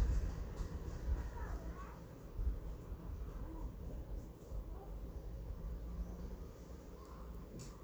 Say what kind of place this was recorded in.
residential area